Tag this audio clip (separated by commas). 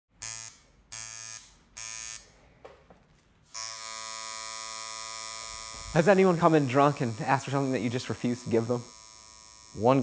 inside a large room or hall, Speech